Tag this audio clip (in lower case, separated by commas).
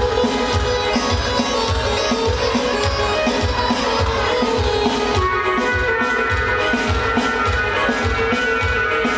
music, male singing